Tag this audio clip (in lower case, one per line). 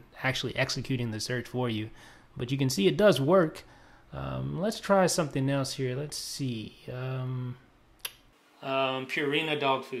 speech